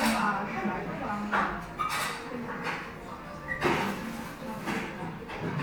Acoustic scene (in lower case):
crowded indoor space